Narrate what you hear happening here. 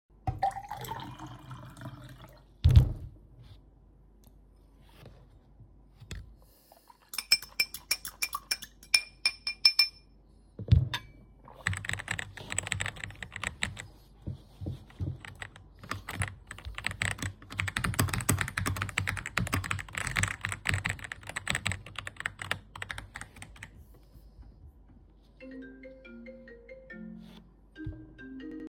I pourded myself some water and stirred the tea with a spoon,lifted the cup and sipped,placed it back.Then I started typing on the keyboard and received a phone call.